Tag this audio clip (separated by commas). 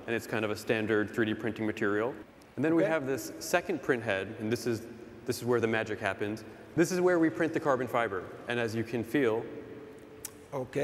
Speech